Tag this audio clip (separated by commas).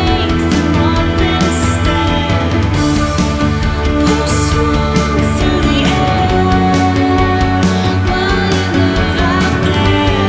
Music